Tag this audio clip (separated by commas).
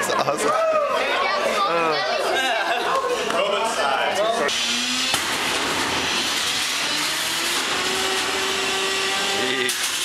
Blender, inside a large room or hall, Speech